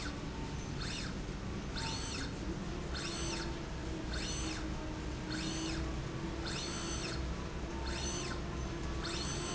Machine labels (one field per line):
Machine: slide rail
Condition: normal